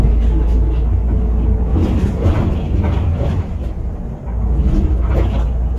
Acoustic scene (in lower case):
bus